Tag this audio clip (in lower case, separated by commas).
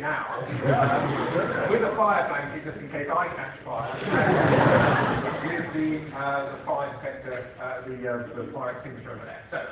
speech